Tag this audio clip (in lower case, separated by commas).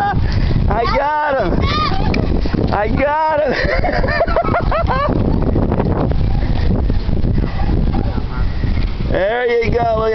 speech